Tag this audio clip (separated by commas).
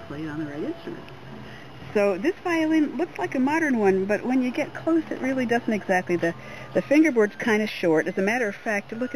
Speech